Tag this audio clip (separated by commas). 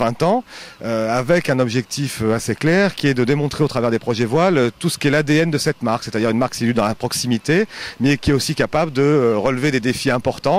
Speech